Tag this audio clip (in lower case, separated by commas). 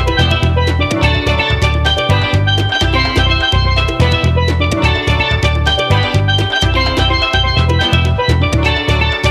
playing steelpan